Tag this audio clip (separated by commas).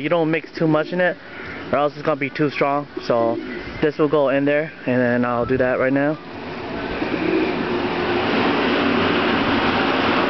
Speech